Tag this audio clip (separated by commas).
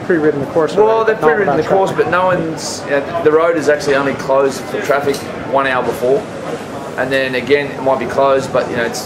Speech